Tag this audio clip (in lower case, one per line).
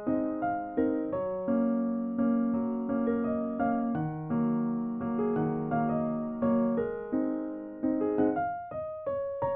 music
tender music